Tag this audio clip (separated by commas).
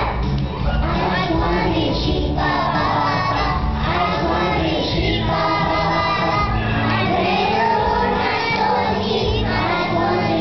Music